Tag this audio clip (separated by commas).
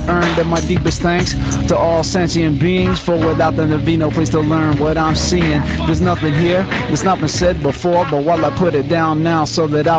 Radio, Speech, Music